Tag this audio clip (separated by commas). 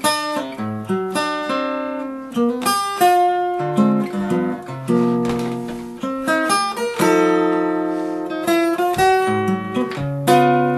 Musical instrument, Strum, Jazz, Plucked string instrument, Guitar, Acoustic guitar, Music